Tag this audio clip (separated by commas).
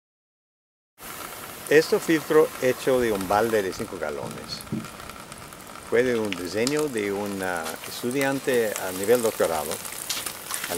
Water, Speech